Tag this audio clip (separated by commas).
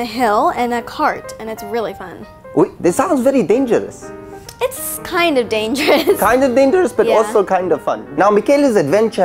Music, Speech